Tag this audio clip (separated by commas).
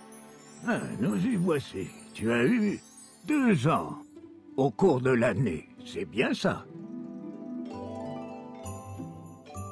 Speech, Music